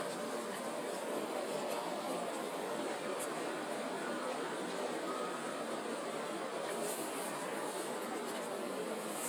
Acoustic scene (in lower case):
residential area